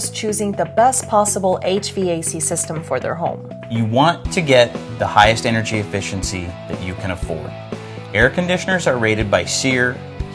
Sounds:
Music, Speech

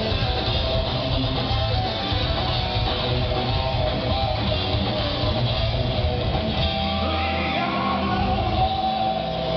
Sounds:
Music

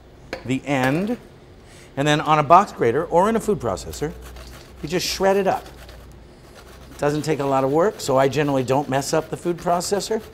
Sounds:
Speech

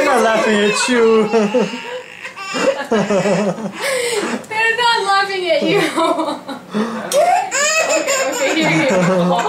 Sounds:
Speech, inside a small room

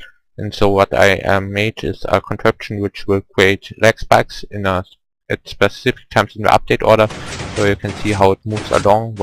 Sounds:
Speech

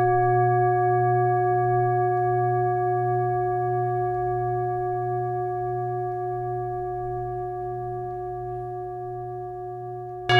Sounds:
Singing bowl

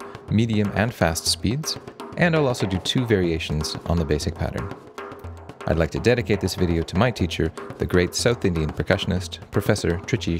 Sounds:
Drum roll, Music, Speech

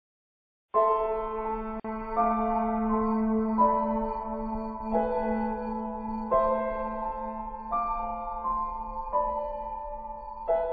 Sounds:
Music, Keyboard (musical)

